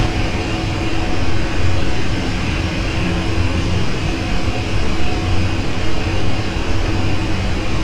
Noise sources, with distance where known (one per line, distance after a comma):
unidentified impact machinery, near